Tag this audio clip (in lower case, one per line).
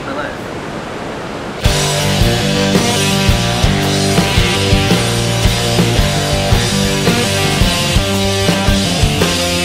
speech
music
outside, rural or natural